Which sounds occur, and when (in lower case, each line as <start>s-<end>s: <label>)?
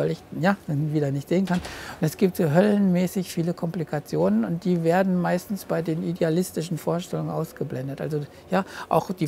0.0s-0.1s: male speech
0.0s-9.2s: background noise
0.3s-1.7s: male speech
1.7s-2.0s: breathing
1.9s-8.2s: male speech
8.5s-9.2s: male speech